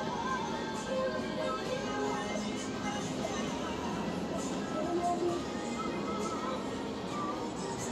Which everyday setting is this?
street